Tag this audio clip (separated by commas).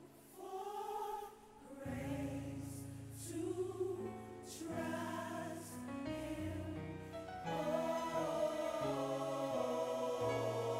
Music